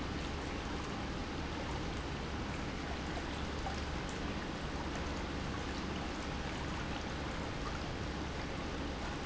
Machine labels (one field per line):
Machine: pump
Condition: normal